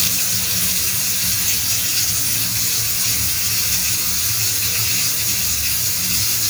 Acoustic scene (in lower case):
restroom